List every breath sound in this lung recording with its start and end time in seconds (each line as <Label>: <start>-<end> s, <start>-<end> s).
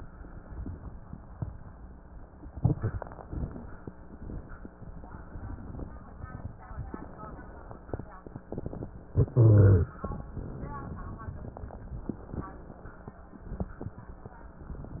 Inhalation: 2.50-3.25 s, 4.02-4.72 s, 9.13-9.98 s
Exhalation: 3.25-3.99 s, 9.97-11.50 s
Wheeze: 9.13-9.98 s
Crackles: 2.50-3.25 s, 3.25-3.99 s, 4.02-4.72 s, 9.97-11.50 s